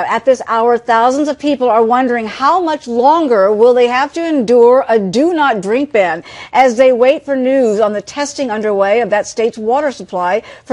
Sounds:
Speech

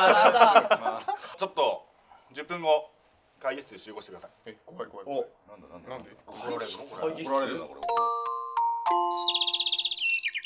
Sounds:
Speech, Music, inside a large room or hall

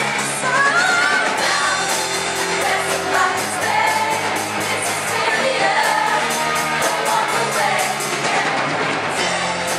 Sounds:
Singing, Choir, Music

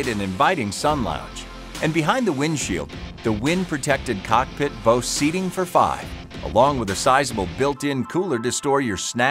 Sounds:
Music, Speech

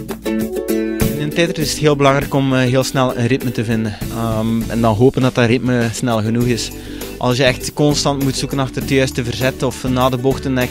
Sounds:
Speech, Music

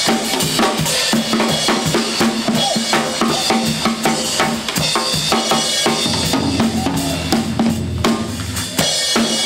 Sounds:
Drum, Music, Musical instrument, Drum kit

